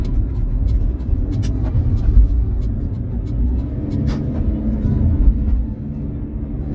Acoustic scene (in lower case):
car